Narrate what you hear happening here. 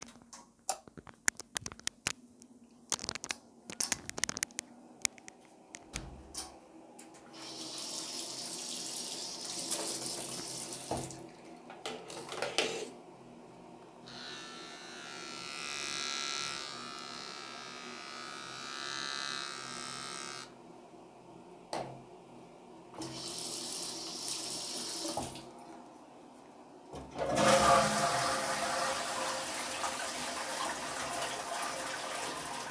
I turned the light on, walked inside the bathroom, door closed, washed my hands, turned on my beard trimmer, washed my hands again then flushed the toilet.